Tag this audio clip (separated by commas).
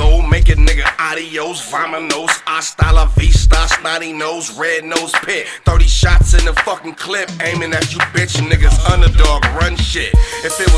Rapping, Hip hop music, Music